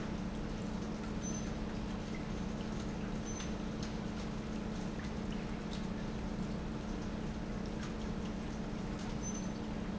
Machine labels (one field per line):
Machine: pump